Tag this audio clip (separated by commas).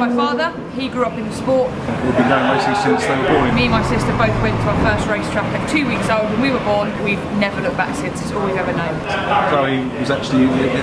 Speech, Race car, Car, Vehicle